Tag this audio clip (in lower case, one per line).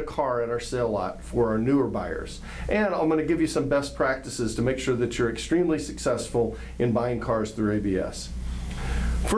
speech